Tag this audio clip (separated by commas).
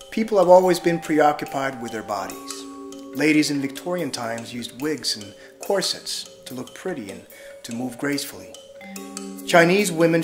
Music, Speech, Vibraphone